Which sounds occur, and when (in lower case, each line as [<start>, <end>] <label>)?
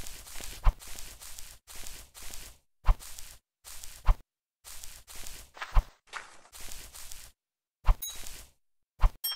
[0.03, 1.52] video game sound
[0.05, 0.38] walk
[0.49, 1.54] walk
[0.55, 0.70] sound effect
[1.61, 2.56] video game sound
[1.64, 2.61] walk
[2.75, 3.15] walk
[2.76, 2.90] sound effect
[2.79, 3.32] video game sound
[3.58, 4.16] video game sound
[3.61, 4.23] walk
[4.02, 4.09] sound effect
[4.60, 7.28] video game sound
[4.62, 5.54] walk
[5.51, 5.84] sound effect
[6.07, 6.20] sound effect
[6.48, 7.34] walk
[7.79, 8.13] sound effect
[7.79, 8.59] video game sound
[8.06, 8.50] walk
[8.93, 9.35] video game sound
[8.96, 9.04] sound effect
[9.19, 9.35] sound effect